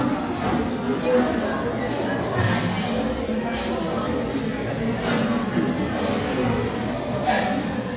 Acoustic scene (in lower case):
crowded indoor space